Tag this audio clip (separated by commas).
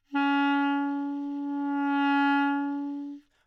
Music, Wind instrument, Musical instrument